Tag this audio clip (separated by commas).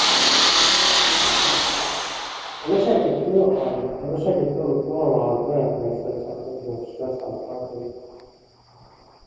Drill, Speech